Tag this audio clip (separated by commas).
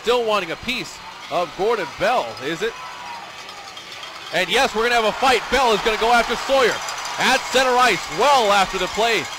Speech